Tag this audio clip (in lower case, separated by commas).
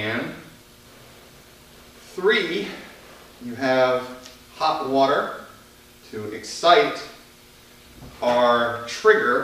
speech